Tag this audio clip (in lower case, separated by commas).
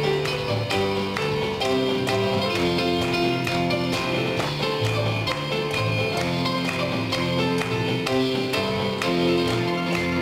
gospel music, music